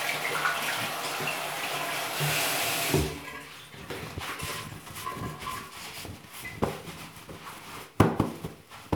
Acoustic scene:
restroom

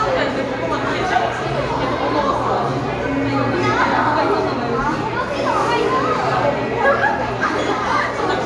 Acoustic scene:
crowded indoor space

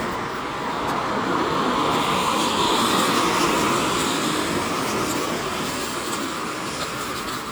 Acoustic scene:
street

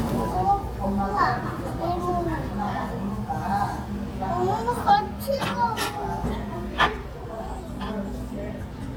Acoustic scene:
restaurant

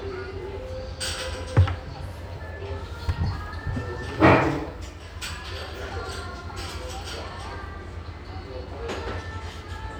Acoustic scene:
restaurant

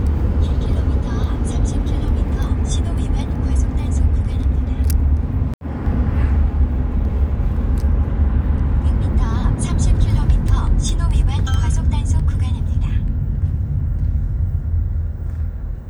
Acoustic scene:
car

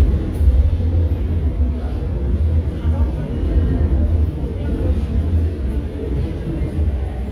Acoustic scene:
subway station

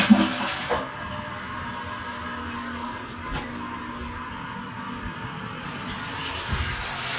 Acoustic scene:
restroom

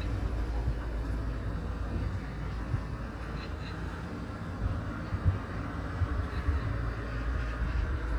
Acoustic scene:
street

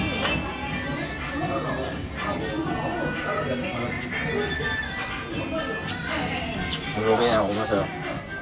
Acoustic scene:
restaurant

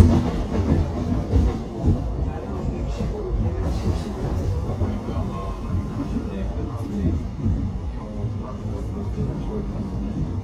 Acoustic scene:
subway train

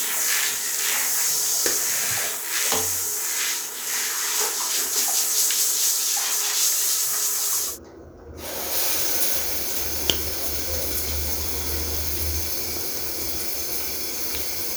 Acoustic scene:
restroom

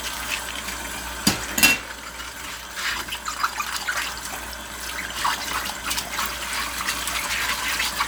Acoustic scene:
kitchen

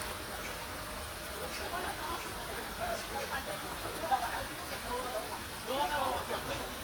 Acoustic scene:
park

